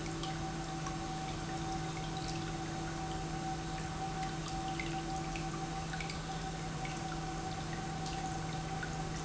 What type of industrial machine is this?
pump